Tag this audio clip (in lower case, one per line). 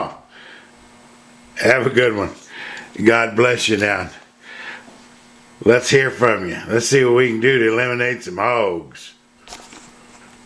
speech